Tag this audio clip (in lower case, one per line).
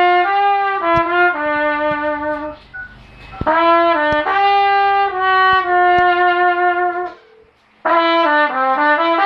playing trumpet
trumpet
musical instrument
brass instrument
music